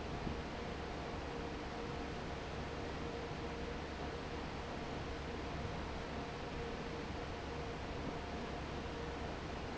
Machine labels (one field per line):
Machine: fan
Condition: normal